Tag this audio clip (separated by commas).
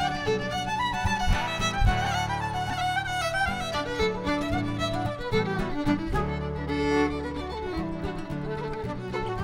Violin, Music